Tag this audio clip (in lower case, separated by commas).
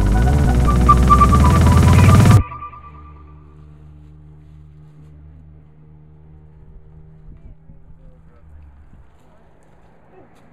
outside, urban or man-made, music